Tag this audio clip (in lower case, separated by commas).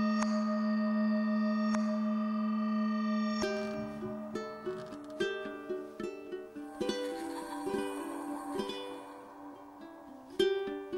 music, new-age music